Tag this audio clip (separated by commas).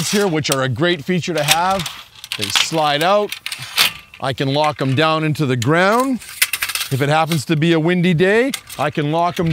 Speech